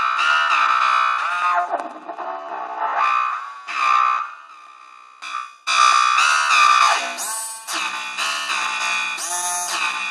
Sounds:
Music, Synthesizer

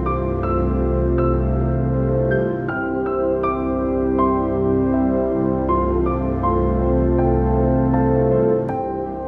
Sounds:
Music

